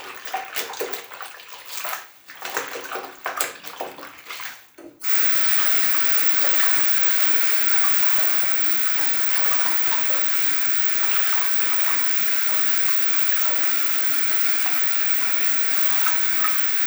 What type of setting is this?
restroom